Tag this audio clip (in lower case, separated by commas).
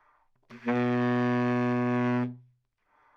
musical instrument, woodwind instrument, music